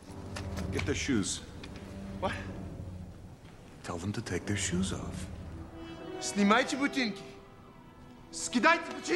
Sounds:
Music, Speech

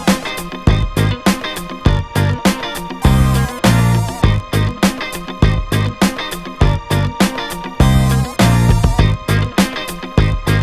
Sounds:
Music

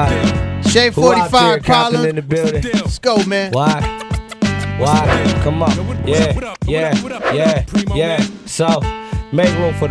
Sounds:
Music, Hip hop music

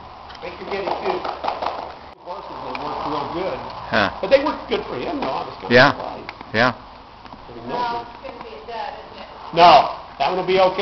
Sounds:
Speech

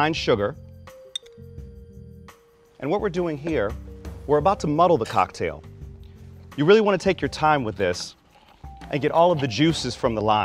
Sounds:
Speech, Music

